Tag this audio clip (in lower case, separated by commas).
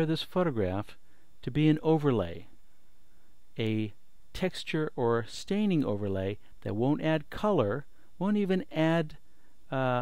speech